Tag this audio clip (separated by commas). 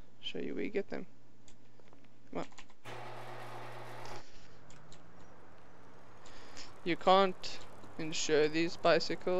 Bicycle, Speech